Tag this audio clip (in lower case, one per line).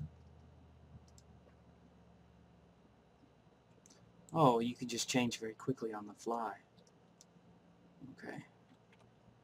clicking